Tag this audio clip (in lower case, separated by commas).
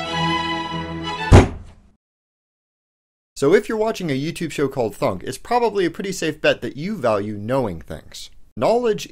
speech, thunk, music